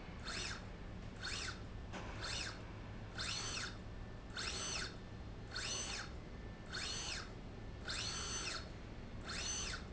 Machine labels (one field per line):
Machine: slide rail